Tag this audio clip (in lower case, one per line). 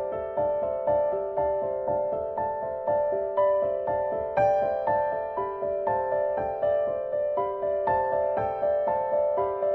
music